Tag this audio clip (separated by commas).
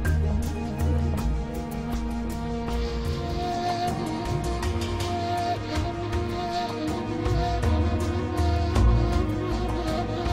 Rhythm and blues, Music